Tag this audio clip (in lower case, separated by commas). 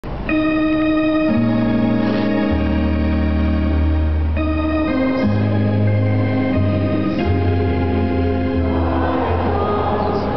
organ, hammond organ